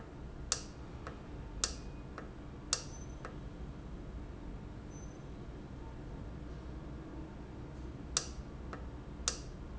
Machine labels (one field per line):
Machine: valve